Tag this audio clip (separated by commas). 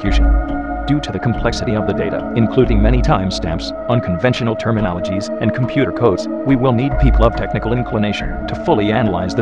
Music, Speech